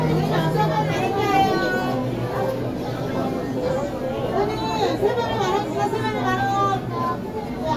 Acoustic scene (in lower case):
crowded indoor space